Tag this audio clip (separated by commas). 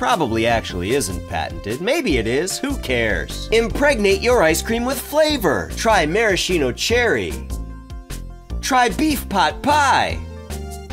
Music, Speech